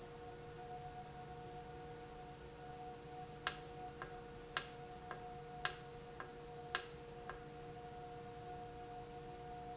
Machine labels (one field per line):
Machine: valve